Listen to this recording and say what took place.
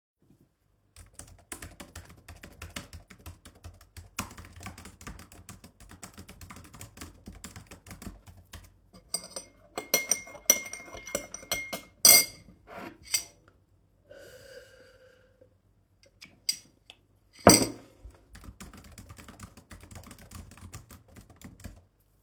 I was typing on my keyboard. After that I was stirring my drink, took a sip and continued typing.